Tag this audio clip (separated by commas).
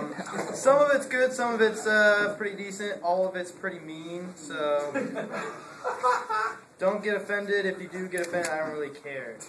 man speaking, Speech, monologue